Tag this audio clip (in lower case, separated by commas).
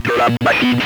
human voice, speech